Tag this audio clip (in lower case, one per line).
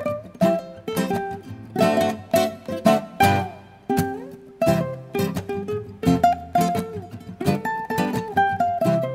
playing ukulele